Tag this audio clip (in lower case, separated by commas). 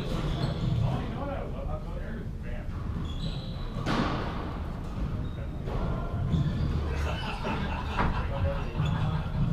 playing squash